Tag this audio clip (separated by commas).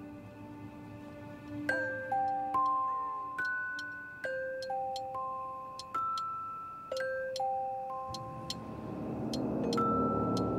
Music, inside a small room